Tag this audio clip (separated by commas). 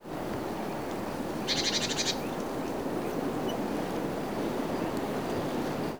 Wild animals, Animal, Bird